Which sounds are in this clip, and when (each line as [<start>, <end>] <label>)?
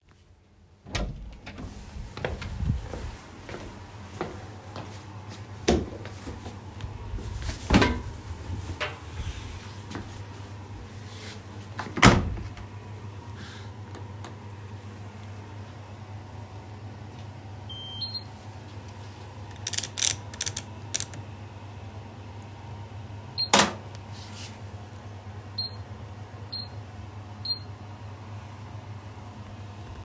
[0.55, 2.01] door
[1.20, 6.27] footsteps
[5.32, 6.27] door